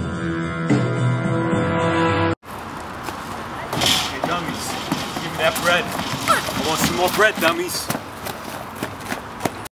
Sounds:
speech
music

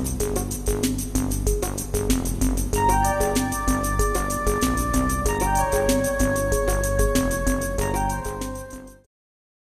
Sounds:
music

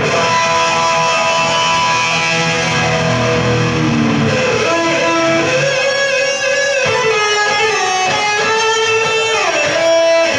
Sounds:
acoustic guitar
strum
plucked string instrument
music
electric guitar
musical instrument
guitar

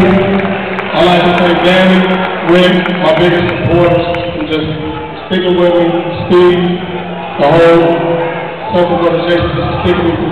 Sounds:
speech
male speech

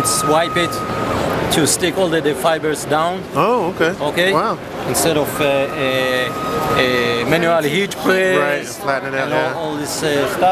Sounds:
speech

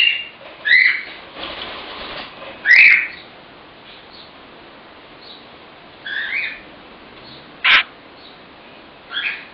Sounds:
bird
inside a small room
pets

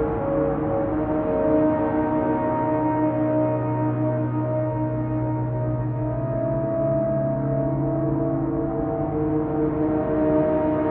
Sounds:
ambient music
music

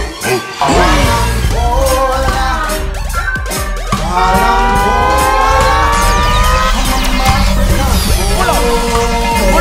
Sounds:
music

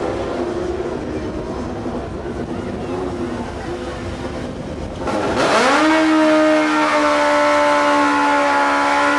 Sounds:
speech

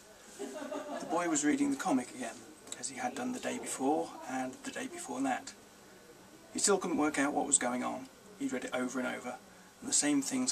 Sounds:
speech

